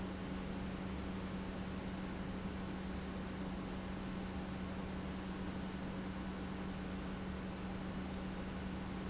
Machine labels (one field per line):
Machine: pump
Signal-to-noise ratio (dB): 0 dB